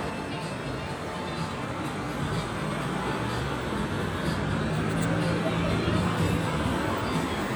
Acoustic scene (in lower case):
street